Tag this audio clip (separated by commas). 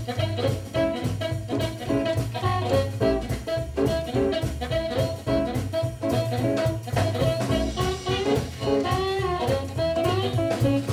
Music